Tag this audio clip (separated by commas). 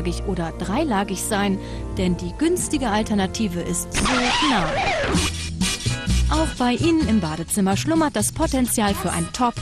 Speech, Music